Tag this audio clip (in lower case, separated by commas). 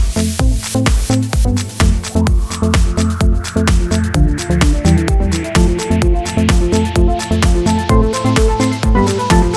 music